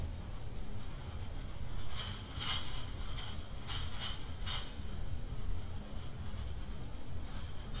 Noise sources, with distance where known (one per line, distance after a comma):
non-machinery impact, far